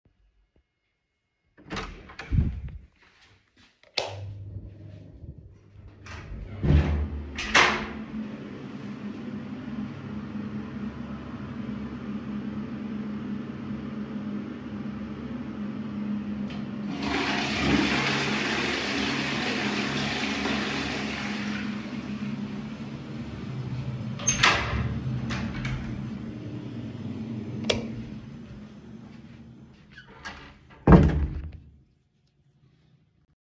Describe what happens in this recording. I opened the door to the toilet, turned on the lights and then closed and locked the door. After some time, I flushed the toilet, unlocked the door and opend it. I turned off the lights and closed the door. I carried my phone with me.